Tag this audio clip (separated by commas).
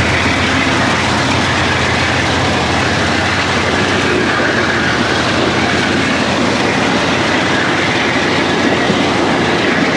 Vehicle, train wagon, Train, Rail transport